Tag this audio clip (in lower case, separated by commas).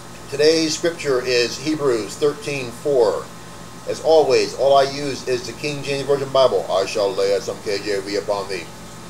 speech